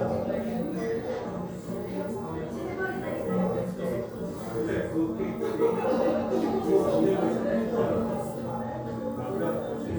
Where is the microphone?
in a crowded indoor space